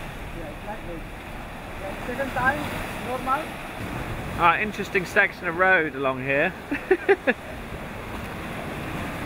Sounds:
Waves

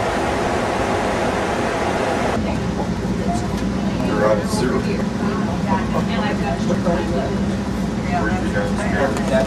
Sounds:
Speech, Vehicle

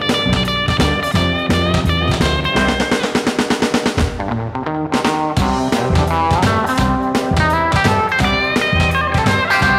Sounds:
Soundtrack music, Music

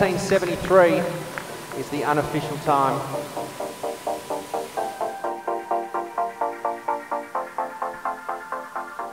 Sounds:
outside, urban or man-made, Music, Speech

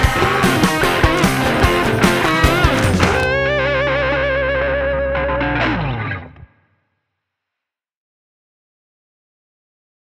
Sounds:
Singing, Choir

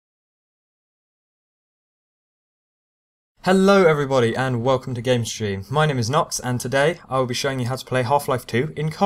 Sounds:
Speech, Silence

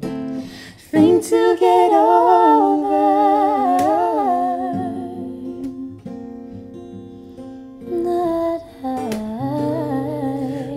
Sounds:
Music, Singing, inside a small room

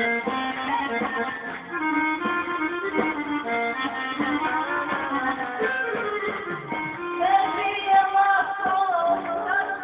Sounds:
Singing

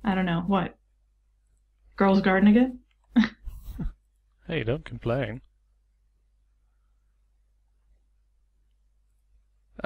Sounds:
Speech

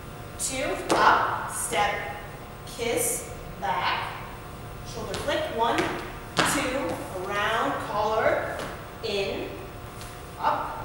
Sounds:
Speech

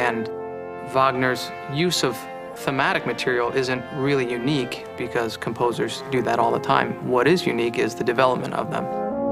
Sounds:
Brass instrument

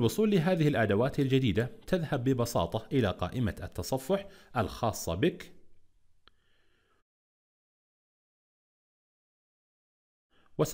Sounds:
Speech

